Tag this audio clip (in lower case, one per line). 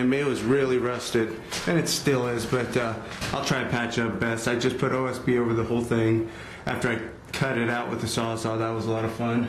speech